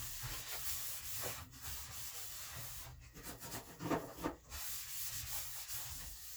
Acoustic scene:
kitchen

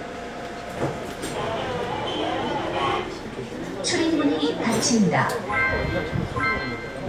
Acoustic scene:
subway train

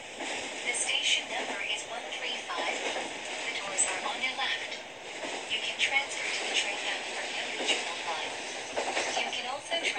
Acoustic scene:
subway train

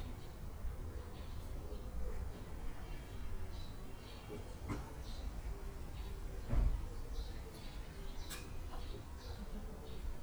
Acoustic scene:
park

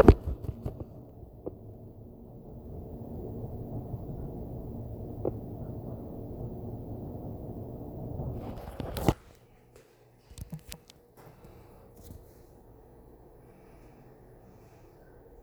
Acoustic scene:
elevator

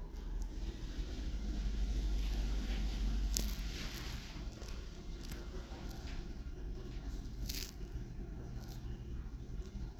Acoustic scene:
elevator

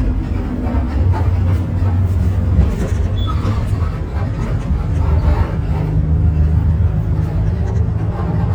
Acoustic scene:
bus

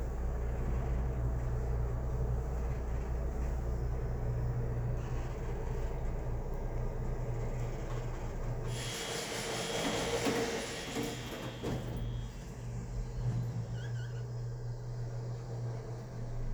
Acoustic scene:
elevator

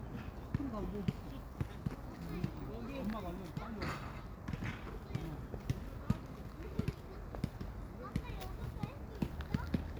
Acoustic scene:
park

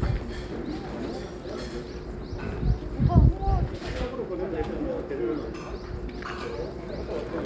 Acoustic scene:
residential area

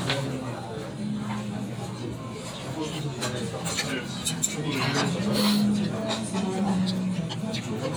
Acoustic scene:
restaurant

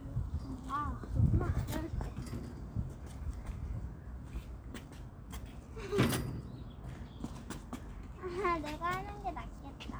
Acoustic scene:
park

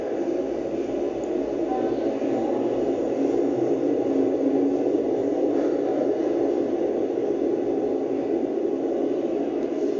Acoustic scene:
subway station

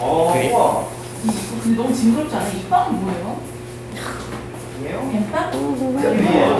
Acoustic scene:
crowded indoor space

